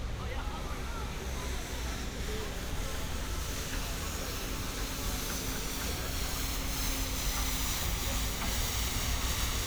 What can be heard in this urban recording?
medium-sounding engine, person or small group talking